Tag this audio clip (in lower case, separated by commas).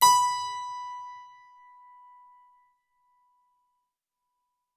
keyboard (musical), musical instrument, music